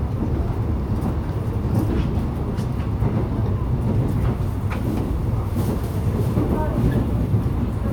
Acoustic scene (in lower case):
subway train